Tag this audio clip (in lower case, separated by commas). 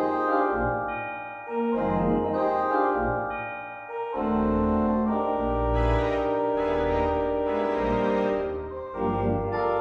organ, electronic organ